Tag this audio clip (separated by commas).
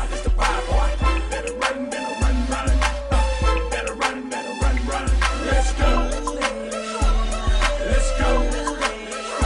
Music